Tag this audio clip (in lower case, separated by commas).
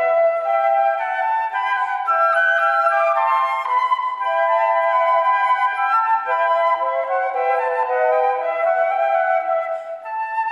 playing flute, flute, music